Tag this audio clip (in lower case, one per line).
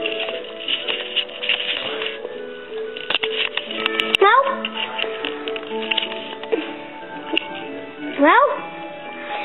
speech
music